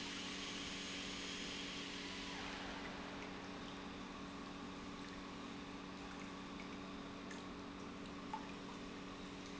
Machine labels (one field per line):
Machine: pump